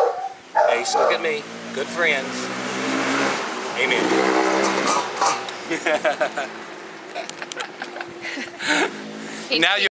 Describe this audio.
A dog barks while a man speaks